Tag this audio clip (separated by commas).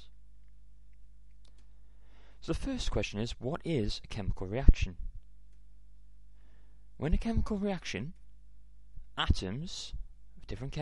Speech